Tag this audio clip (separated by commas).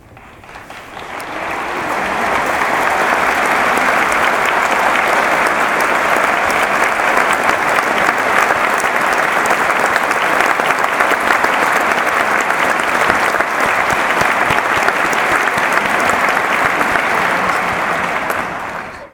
Human group actions, Applause